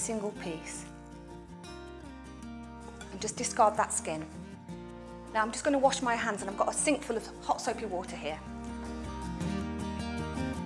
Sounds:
speech, music

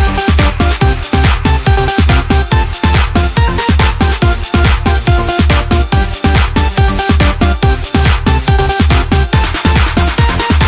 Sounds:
music

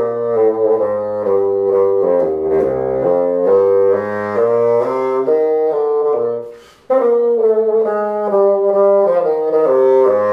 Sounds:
playing bassoon

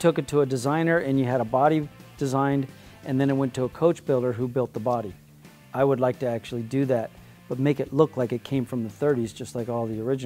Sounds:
music, speech

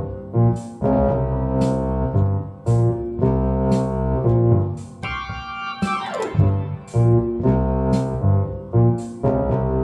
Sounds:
playing hammond organ

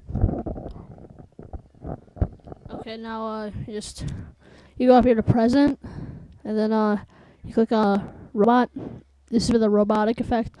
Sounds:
speech

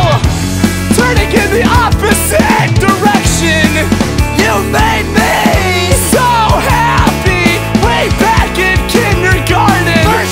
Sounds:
pop music, music

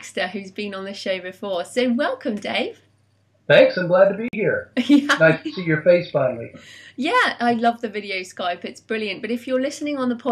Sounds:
speech

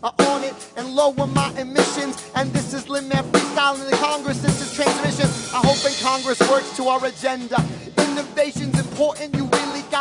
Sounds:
rapping

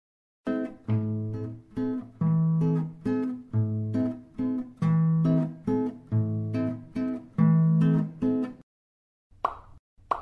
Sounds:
plop, music

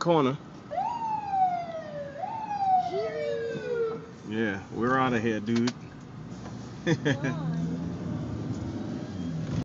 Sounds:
speech, vehicle

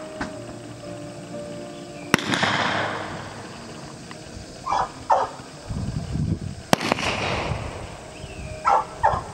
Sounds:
music, horse, livestock, animal

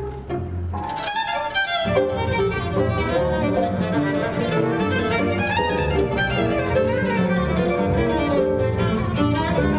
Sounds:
music, bowed string instrument, musical instrument, fiddle

